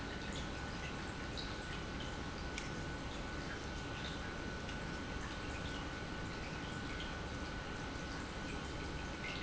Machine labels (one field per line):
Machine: pump